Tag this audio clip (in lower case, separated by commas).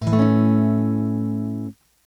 acoustic guitar, plucked string instrument, music, strum, musical instrument, guitar